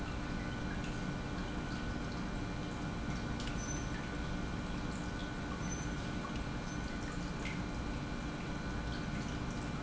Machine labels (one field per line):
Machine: pump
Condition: normal